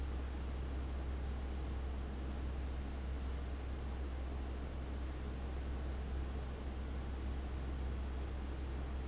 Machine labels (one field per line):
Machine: fan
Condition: abnormal